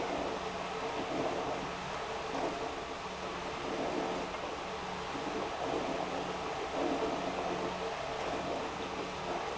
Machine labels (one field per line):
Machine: pump